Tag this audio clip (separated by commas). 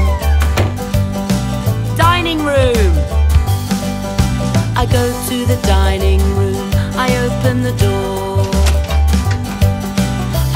Speech, Door, Music